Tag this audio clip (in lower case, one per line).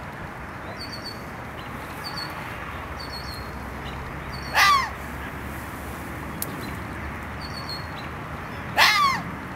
fox barking